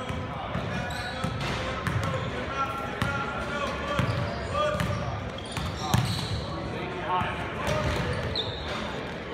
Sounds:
basketball bounce

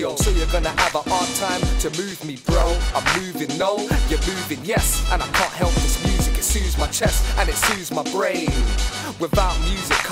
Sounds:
music, soundtrack music

